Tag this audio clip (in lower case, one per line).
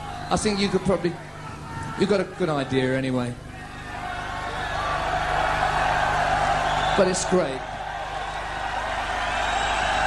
speech